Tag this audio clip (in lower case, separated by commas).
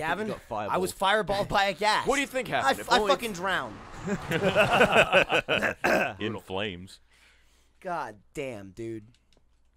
speech